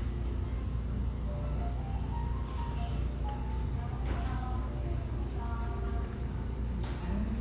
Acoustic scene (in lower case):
cafe